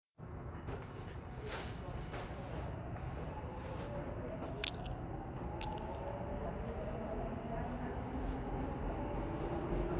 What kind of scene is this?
subway train